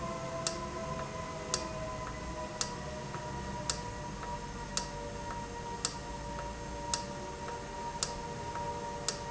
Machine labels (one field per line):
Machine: valve